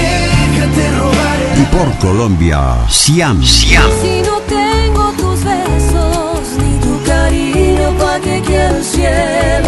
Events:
0.0s-1.9s: male singing
0.0s-9.6s: music
1.9s-3.9s: male speech
3.9s-9.6s: female singing

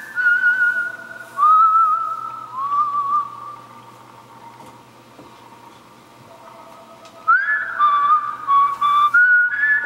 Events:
0.0s-9.8s: mechanisms
0.1s-3.6s: whistle
0.7s-2.2s: telephone bell ringing
4.6s-4.7s: tap
5.2s-5.2s: tap
6.3s-8.0s: telephone bell ringing
7.0s-7.1s: tick
7.3s-9.8s: whistle
8.7s-9.2s: surface contact
9.8s-9.8s: tap

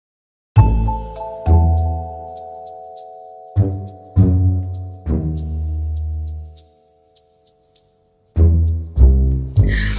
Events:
0.5s-9.9s: music
9.5s-9.6s: tick
9.6s-9.9s: breathing

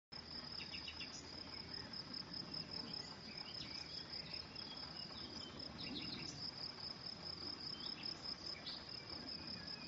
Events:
0.1s-9.8s: background noise
0.1s-9.8s: cricket
0.6s-1.9s: bird song
2.2s-6.4s: bird song
7.7s-8.1s: bird song
8.5s-9.8s: bird song

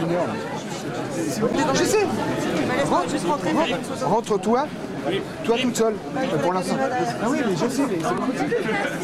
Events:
0.0s-9.0s: inside a public space
0.0s-9.0s: speech babble
0.0s-0.5s: man speaking
1.3s-2.0s: man speaking
2.7s-4.7s: man speaking
5.1s-5.2s: man speaking
5.4s-5.9s: man speaking
6.1s-9.0s: man speaking

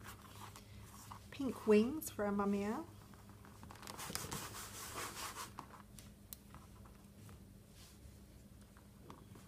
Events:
0.0s-9.4s: mechanisms
1.3s-2.9s: woman speaking
3.9s-5.5s: sanding
7.7s-8.0s: surface contact

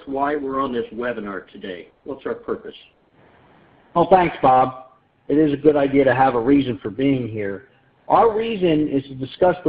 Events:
0.0s-9.6s: background noise
0.0s-9.6s: conversation
0.1s-2.9s: man speaking
3.9s-4.9s: man speaking
5.3s-7.7s: man speaking
8.1s-9.6s: man speaking

